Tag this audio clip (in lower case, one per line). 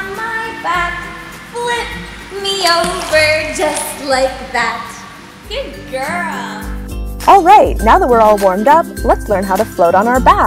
music
speech